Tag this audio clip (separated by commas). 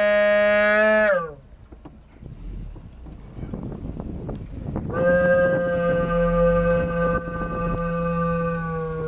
Speech, Animal, outside, rural or natural